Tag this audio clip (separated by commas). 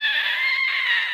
Screech, Screaming, Human voice